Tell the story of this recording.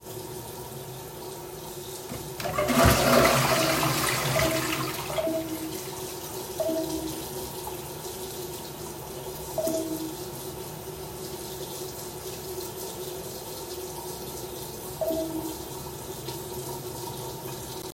I turned on the water to run, the toilet to flush and during these events I received a few notifications